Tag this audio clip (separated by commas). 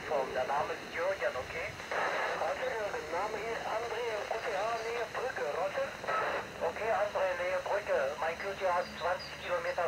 Speech